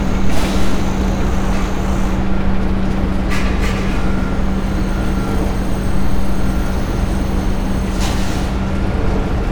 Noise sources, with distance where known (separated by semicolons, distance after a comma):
jackhammer